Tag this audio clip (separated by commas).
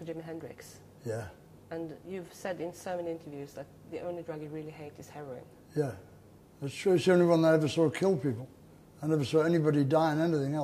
Speech